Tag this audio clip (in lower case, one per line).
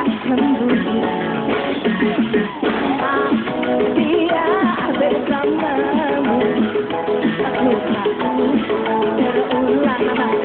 music of asia
music